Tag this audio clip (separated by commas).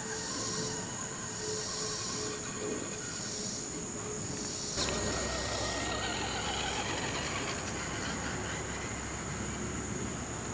Vehicle